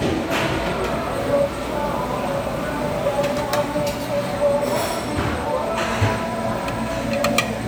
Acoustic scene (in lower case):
restaurant